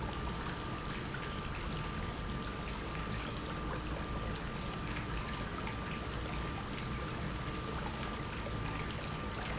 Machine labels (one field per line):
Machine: pump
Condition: normal